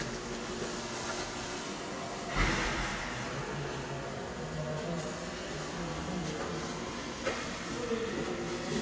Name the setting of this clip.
subway station